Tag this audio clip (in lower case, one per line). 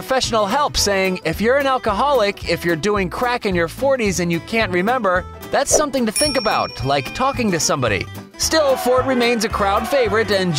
speech
music